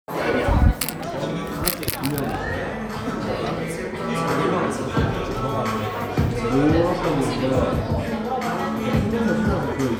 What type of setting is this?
crowded indoor space